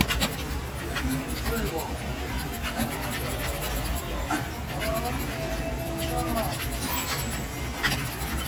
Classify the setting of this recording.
crowded indoor space